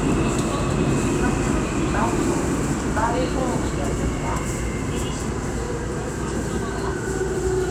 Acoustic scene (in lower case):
subway train